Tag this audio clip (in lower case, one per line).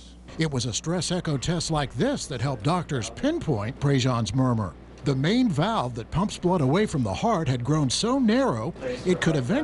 speech